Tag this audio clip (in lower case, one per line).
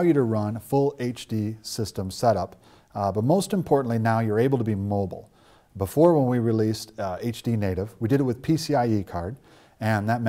speech